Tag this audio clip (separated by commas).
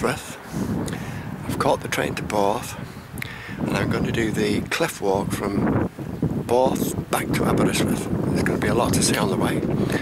Speech